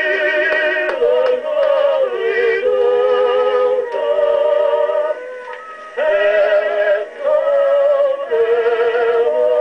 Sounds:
Music

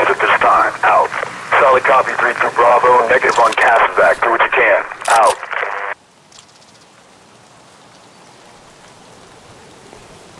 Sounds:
police radio chatter

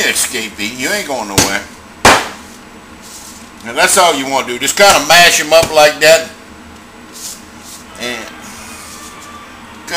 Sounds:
Cap gun

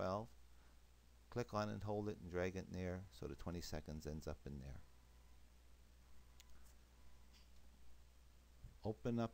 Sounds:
Speech, inside a small room

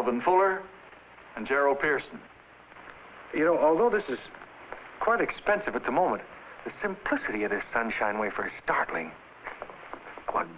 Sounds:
Speech

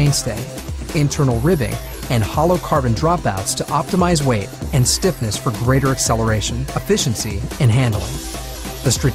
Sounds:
Speech, Music

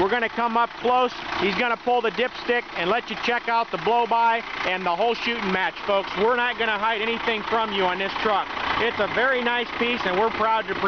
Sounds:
Vehicle, Speech, Truck

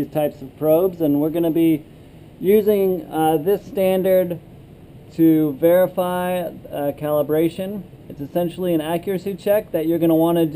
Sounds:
Speech

